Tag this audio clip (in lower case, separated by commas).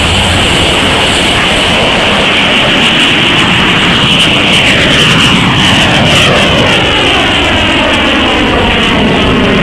fixed-wing aircraft, vehicle, aircraft